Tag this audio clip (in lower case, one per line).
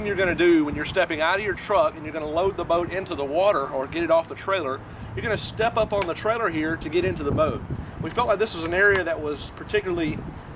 speech